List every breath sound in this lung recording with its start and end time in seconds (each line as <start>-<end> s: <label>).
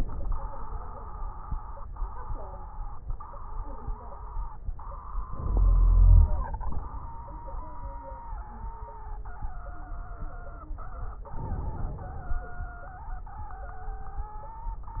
5.25-6.39 s: inhalation
5.33-6.39 s: wheeze
11.31-12.45 s: inhalation